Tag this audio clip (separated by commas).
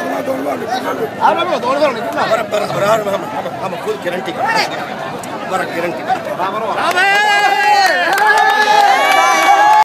Speech